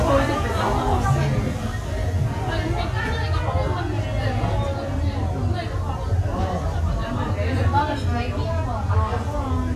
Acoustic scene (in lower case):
restaurant